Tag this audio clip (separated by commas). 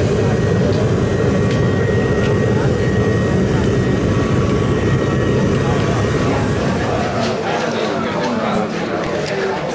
Speech